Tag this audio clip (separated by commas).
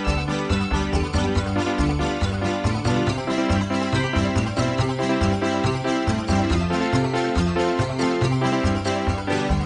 Music